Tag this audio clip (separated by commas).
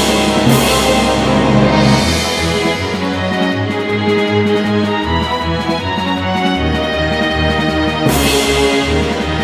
Music